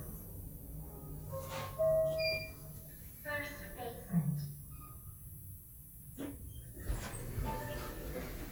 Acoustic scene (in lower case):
elevator